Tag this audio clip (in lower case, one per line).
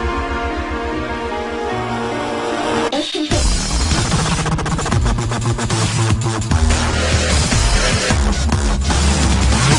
music